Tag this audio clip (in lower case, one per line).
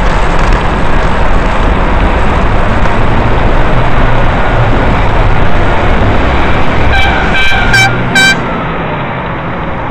vehicle
bus